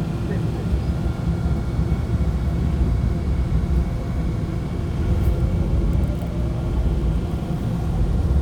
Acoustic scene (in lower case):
subway train